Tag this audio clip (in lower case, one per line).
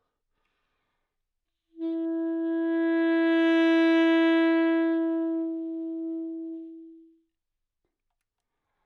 musical instrument
music
woodwind instrument